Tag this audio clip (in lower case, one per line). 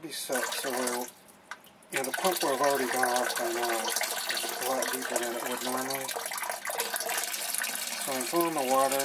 water